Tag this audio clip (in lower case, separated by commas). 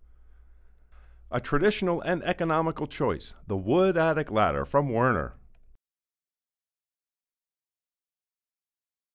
speech